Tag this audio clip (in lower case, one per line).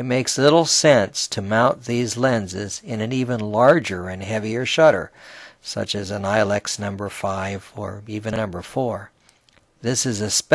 speech